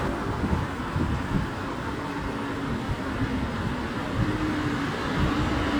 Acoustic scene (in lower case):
street